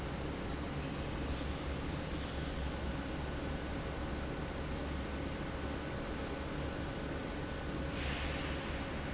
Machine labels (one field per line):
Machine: fan